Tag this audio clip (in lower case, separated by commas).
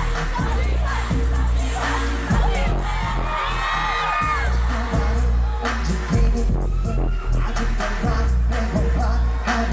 speech, music